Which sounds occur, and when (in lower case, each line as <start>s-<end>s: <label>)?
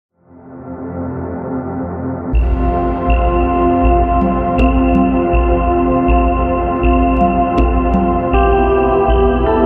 0.1s-9.6s: music